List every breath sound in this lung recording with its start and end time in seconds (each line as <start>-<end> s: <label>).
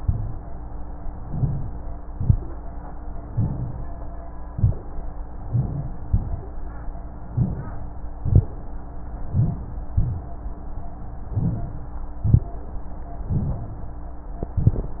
1.24-1.85 s: rhonchi
1.25-2.05 s: inhalation
2.05-2.47 s: exhalation
2.09-2.42 s: crackles
3.25-3.92 s: rhonchi
3.27-3.91 s: inhalation
4.50-4.83 s: crackles
4.52-5.08 s: exhalation
5.41-5.91 s: rhonchi
5.43-6.05 s: inhalation
6.07-6.44 s: crackles
6.07-6.49 s: exhalation
7.31-7.76 s: inhalation
7.33-7.70 s: rhonchi
8.20-8.57 s: crackles
8.24-8.69 s: exhalation
9.28-9.65 s: rhonchi
9.30-9.75 s: inhalation
9.96-10.42 s: exhalation
11.33-11.97 s: inhalation
11.35-11.68 s: rhonchi
12.22-12.55 s: crackles
12.22-12.58 s: exhalation
13.26-13.87 s: inhalation
13.28-13.73 s: rhonchi
14.57-15.00 s: exhalation
14.57-15.00 s: crackles